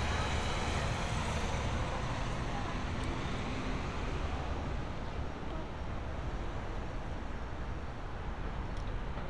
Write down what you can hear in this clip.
medium-sounding engine